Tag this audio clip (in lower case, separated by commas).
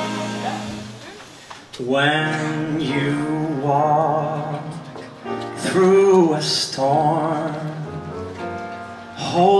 music